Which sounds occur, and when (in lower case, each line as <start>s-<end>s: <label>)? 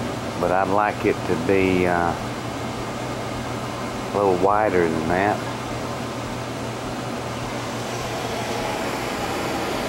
0.0s-9.8s: mechanisms
0.3s-2.1s: man speaking
4.1s-5.4s: man speaking